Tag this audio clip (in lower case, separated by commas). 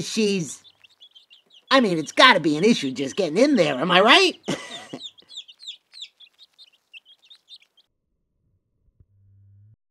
speech